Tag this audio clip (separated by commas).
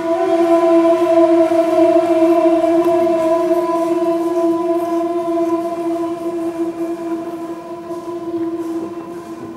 Music, Flute